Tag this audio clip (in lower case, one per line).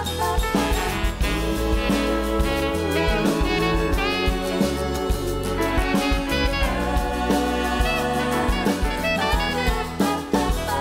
jazz
singing